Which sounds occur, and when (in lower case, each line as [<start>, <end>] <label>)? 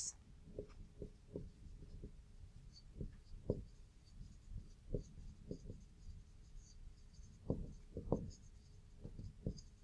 [0.00, 0.12] human voice
[0.00, 9.83] background noise
[0.53, 0.67] tap
[0.61, 1.13] writing
[0.92, 1.07] tap
[1.27, 1.39] tap
[1.32, 1.92] writing
[1.76, 2.10] tap
[2.44, 2.86] writing
[2.95, 3.08] tap
[3.15, 3.77] writing
[3.43, 3.60] tap
[3.99, 4.75] writing
[4.48, 4.61] tap
[4.88, 5.03] tap
[4.91, 5.32] writing
[5.46, 5.72] tap
[5.46, 6.13] writing
[6.27, 6.72] writing
[6.93, 7.48] writing
[7.44, 7.69] tap
[7.63, 7.88] writing
[7.89, 8.16] tap
[8.05, 8.79] writing
[9.00, 9.23] tap
[9.09, 9.30] writing
[9.39, 9.54] tap
[9.43, 9.83] writing